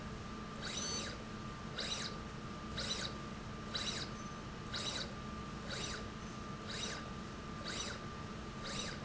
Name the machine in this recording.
slide rail